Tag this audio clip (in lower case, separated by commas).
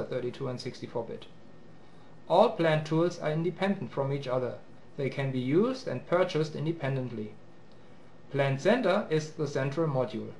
speech